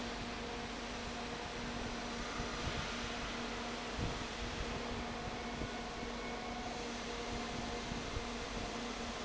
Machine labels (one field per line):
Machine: fan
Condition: abnormal